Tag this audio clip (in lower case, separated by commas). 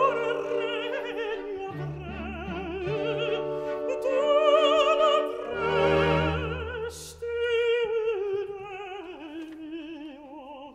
opera, music